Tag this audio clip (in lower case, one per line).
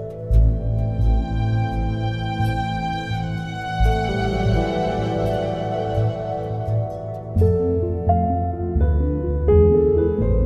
music
new-age music